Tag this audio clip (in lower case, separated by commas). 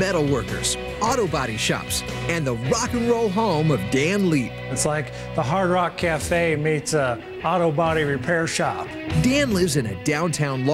musical instrument, speech, music